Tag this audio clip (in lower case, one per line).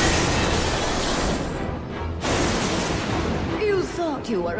speech
music